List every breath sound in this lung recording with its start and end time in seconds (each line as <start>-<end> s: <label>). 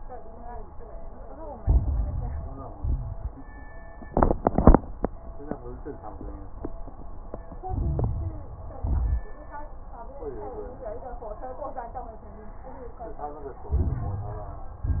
1.59-2.75 s: inhalation
1.59-2.75 s: crackles
2.77-3.36 s: exhalation
2.77-3.36 s: crackles
7.66-8.80 s: inhalation
7.66-8.80 s: crackles
8.84-9.27 s: exhalation
8.84-9.27 s: crackles
13.72-14.84 s: inhalation
13.72-14.84 s: crackles
14.86-15.00 s: exhalation
14.86-15.00 s: crackles